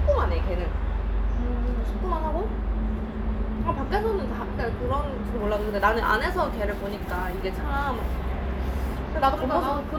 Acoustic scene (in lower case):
restaurant